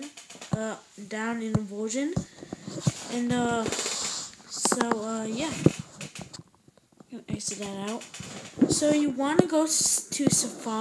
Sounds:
speech

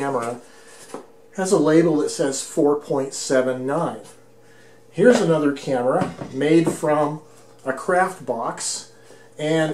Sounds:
speech

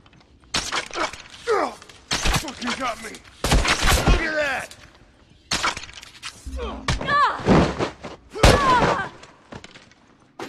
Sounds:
swoosh
arrow

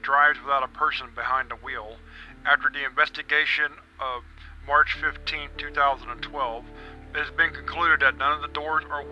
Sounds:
music
speech
monologue

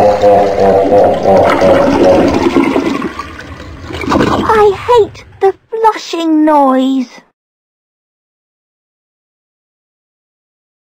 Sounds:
child speech
speech

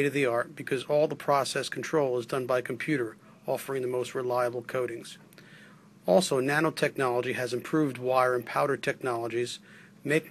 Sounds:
speech

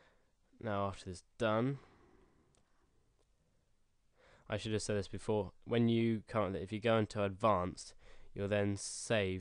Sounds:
speech

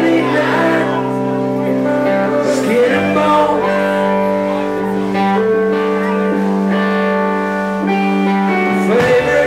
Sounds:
speech
music

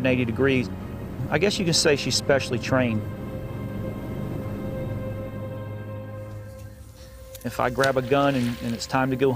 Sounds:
music
speech

